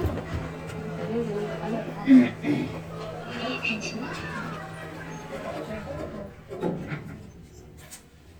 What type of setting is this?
elevator